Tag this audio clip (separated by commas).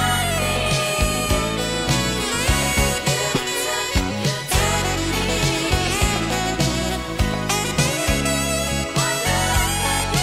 Soul music, Music